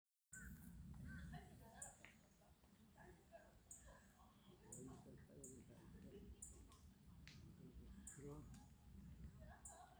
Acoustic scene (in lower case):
park